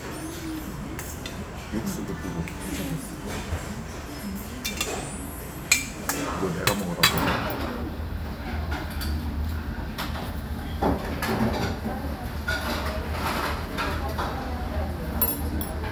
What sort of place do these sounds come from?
restaurant